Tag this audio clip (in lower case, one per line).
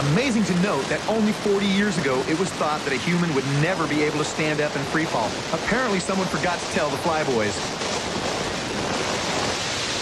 pink noise
speech